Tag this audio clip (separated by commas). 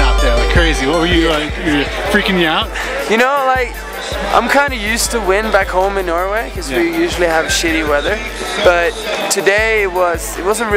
Speech, Music